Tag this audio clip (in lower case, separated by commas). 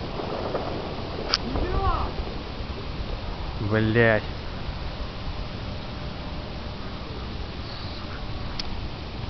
speech